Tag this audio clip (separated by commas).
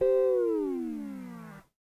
Music, Guitar, Musical instrument, Plucked string instrument